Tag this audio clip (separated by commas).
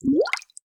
Gurgling, Water